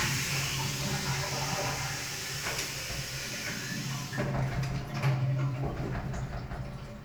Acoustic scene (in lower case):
restroom